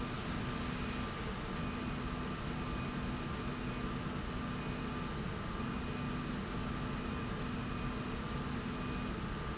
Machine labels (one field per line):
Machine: slide rail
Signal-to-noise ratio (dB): -6 dB